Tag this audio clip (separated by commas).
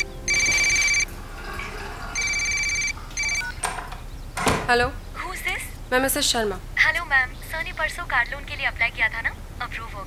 Speech